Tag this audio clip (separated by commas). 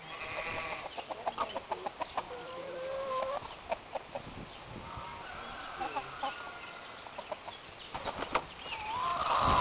chicken crowing